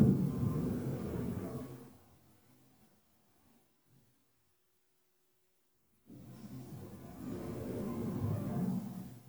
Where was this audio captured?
in an elevator